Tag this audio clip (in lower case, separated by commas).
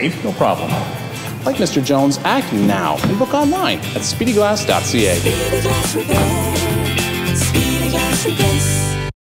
speech, music